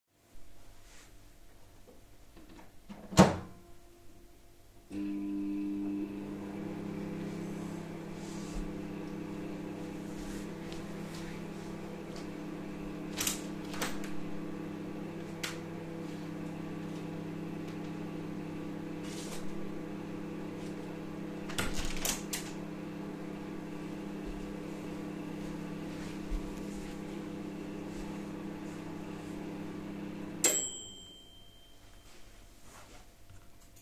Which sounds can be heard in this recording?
microwave, window